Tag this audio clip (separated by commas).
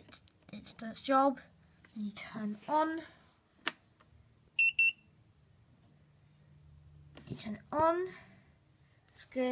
Speech, inside a small room, bleep